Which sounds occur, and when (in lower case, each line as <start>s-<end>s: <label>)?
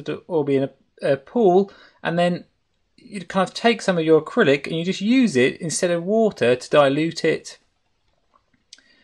0.0s-0.7s: man speaking
0.0s-9.0s: background noise
0.9s-1.7s: man speaking
1.7s-2.0s: breathing
2.0s-2.4s: man speaking
3.0s-7.6s: man speaking
8.3s-8.4s: tick
8.7s-8.8s: tick
8.7s-9.0s: breathing